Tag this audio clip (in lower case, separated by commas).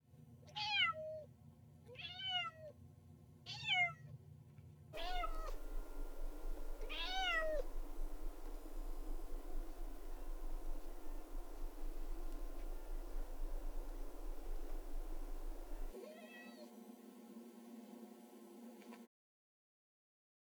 cat, meow, domestic animals, animal